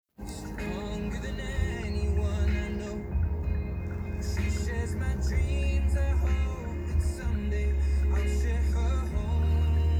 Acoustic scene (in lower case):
car